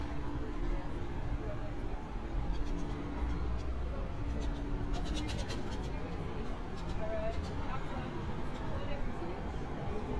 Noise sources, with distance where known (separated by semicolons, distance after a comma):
person or small group talking